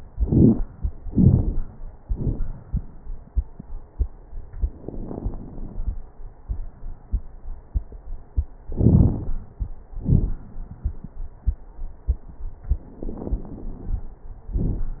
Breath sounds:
Inhalation: 4.72-5.95 s, 8.75-9.37 s, 13.00-14.14 s
Exhalation: 10.01-10.41 s, 14.58-15.00 s
Crackles: 4.72-5.95 s, 8.75-9.37 s, 10.01-10.41 s, 13.00-14.14 s, 14.58-15.00 s

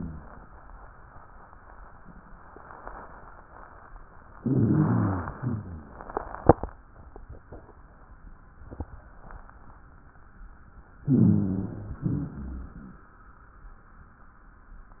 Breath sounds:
Inhalation: 4.38-5.31 s, 11.04-11.97 s
Exhalation: 5.35-6.28 s, 12.03-12.96 s
Rhonchi: 4.38-5.31 s, 5.35-6.28 s, 11.04-11.97 s, 12.03-12.96 s

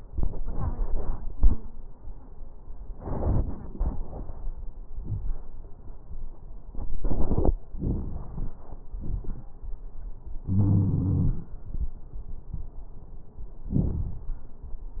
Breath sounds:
Inhalation: 7.76-8.80 s
Exhalation: 8.93-9.52 s
Wheeze: 10.51-11.39 s
Crackles: 7.76-8.80 s, 8.93-9.52 s

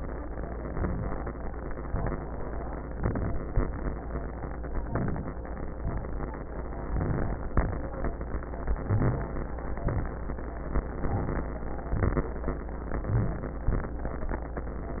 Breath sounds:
Inhalation: 0.72-1.31 s, 2.96-3.59 s, 4.86-5.46 s, 6.91-7.48 s, 8.82-9.39 s, 11.01-11.55 s, 13.09-13.68 s
Exhalation: 1.90-2.49 s, 5.75-6.32 s, 7.51-8.08 s, 9.79-10.40 s, 11.94-12.48 s, 13.70-14.29 s

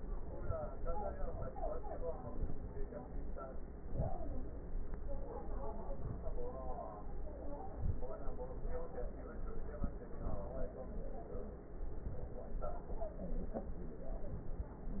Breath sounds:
Inhalation: 3.80-4.20 s, 5.92-6.32 s, 7.75-8.15 s

